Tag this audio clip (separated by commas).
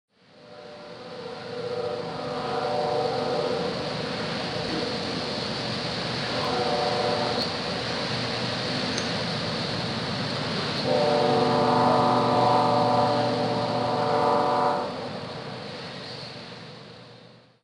Train, Rail transport, Vehicle